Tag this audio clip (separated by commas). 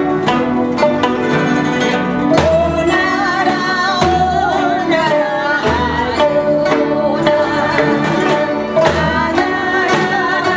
Music